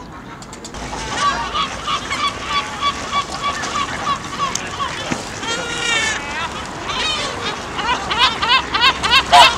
Several ducks quack nearby